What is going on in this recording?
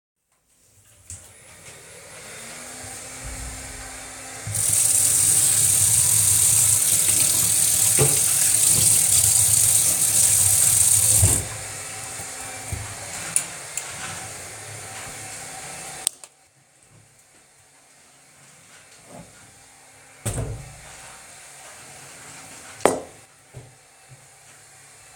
In the background, the vacuum cleaner starts. After a short while, the person turns on the kitchen tap and washes their hands. Someone sets a glass down on the kitchen counter. The tap is turned off. The person dries their hands on the kitchen towel, does not hang it back on the hook, but places it on the counter instead, and the sound of the clip that had been holding it can be heard. They pick up the glass from the counter, place it in the open kitchen cupboard, and close it. Then someone sets a second glass down on the kitchen counter.